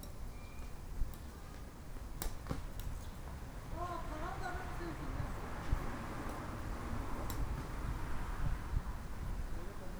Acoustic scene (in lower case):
park